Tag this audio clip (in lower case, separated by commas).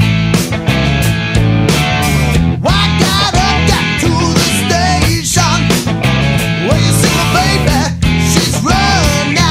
heavy metal, music